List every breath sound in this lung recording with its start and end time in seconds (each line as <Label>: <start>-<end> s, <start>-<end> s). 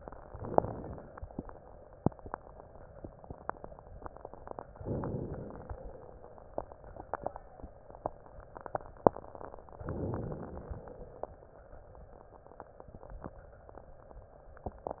Inhalation: 0.25-1.27 s, 4.82-5.84 s, 9.90-10.93 s